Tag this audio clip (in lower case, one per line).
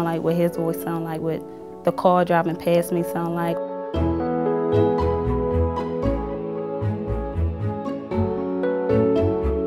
music
female speech
speech